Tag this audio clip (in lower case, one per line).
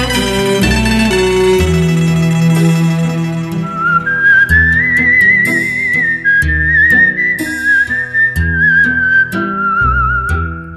music